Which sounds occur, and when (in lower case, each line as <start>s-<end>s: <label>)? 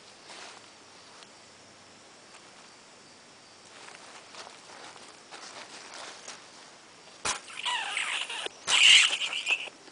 0.0s-9.9s: cricket
0.1s-1.2s: patter
1.2s-1.2s: tick
2.3s-2.7s: patter
3.6s-6.2s: patter
6.2s-6.3s: generic impact sounds
6.4s-7.2s: patter
7.2s-7.3s: generic impact sounds
7.4s-8.5s: rats
8.6s-9.7s: rats
9.0s-9.7s: patter